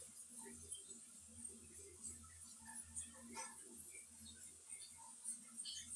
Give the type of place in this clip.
restroom